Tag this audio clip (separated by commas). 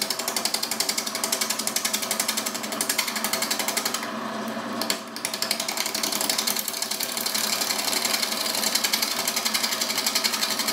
Tools